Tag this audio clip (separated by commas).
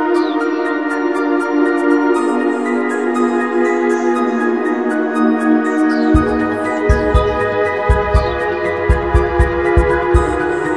Music